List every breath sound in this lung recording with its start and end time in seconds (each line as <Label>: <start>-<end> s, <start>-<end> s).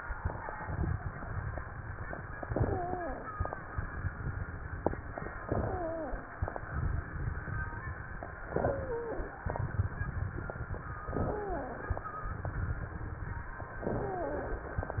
Inhalation: 2.43-3.30 s, 5.46-6.34 s, 8.50-9.37 s, 11.14-12.01 s, 13.83-14.74 s
Wheeze: 2.43-3.30 s, 5.46-6.34 s, 8.50-9.37 s, 11.29-12.01 s, 13.83-14.74 s